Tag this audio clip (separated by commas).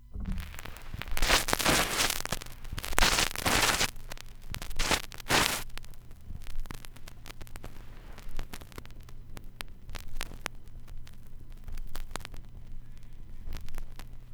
Crackle